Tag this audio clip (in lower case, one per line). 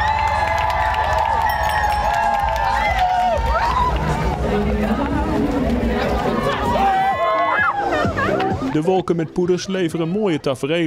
music
run
speech